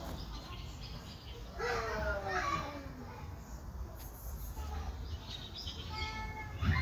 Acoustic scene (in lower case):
park